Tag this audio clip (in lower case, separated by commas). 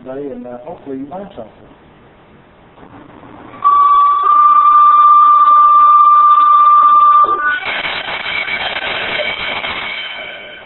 speech